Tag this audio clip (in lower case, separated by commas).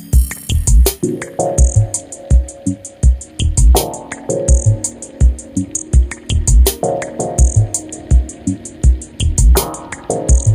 music